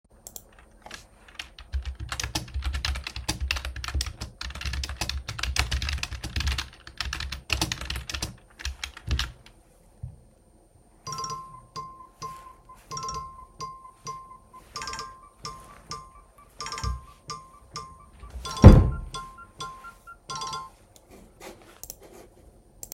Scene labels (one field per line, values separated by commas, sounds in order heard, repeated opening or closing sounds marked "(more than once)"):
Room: living room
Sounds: keyboard typing, phone ringing, wardrobe or drawer